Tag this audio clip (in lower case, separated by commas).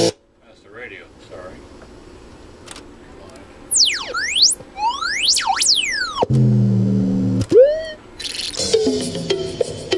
chirp tone